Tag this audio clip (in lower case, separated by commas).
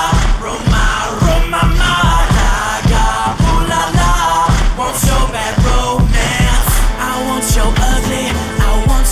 music, rhythm and blues